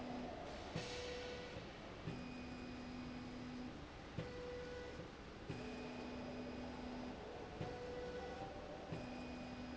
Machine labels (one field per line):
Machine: slide rail